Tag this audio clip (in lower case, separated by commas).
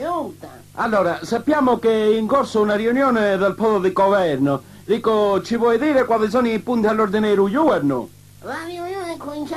speech